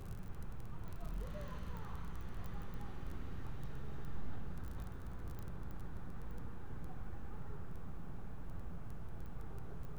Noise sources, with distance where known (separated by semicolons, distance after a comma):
unidentified human voice